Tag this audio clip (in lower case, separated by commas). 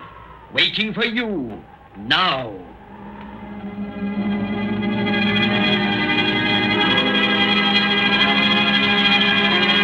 music, speech